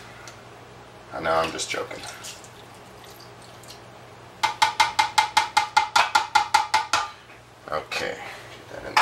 Man talking and dish pan being tapped